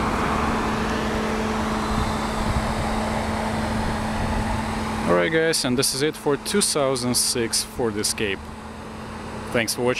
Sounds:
Vehicle, outside, urban or man-made, Speech, Car

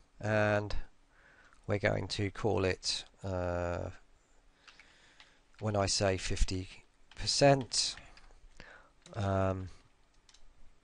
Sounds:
Speech

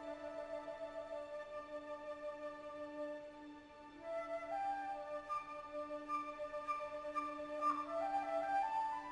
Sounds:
Music, Musical instrument

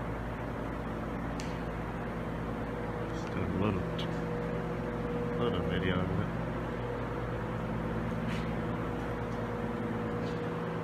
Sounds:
Vehicle, Truck, Speech

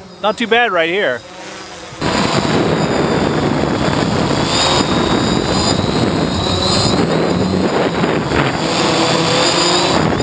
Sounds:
Speech

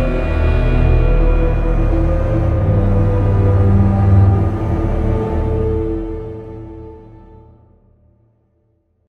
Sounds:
Music

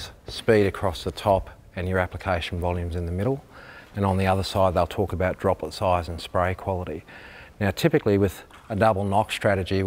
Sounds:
Speech

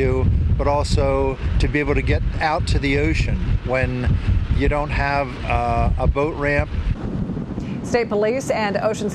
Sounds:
Speech, sailing ship

